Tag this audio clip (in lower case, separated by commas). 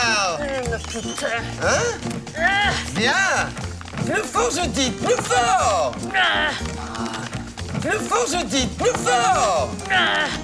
speech, music